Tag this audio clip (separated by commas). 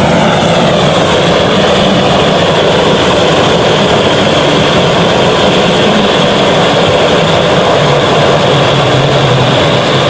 blowtorch igniting